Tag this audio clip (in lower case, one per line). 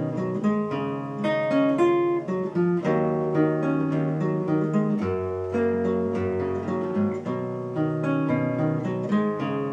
plucked string instrument
strum
guitar
musical instrument
acoustic guitar
electric guitar
music